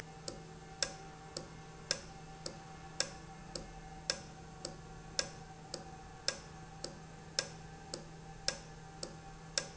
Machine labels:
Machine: valve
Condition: normal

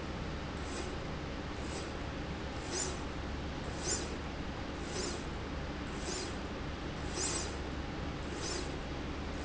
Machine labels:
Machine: slide rail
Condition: normal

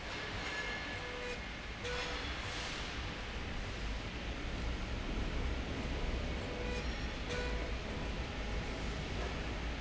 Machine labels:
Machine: slide rail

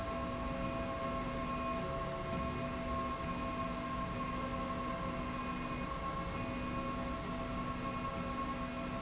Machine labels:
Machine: slide rail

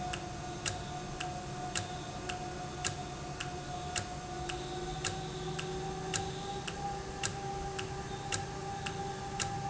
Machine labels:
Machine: valve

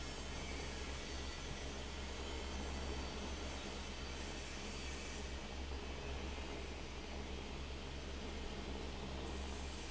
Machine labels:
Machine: fan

